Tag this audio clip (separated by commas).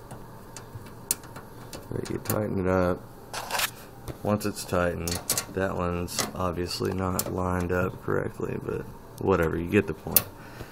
inside a small room, Speech